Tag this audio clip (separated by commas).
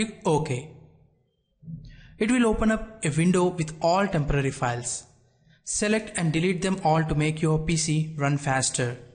Speech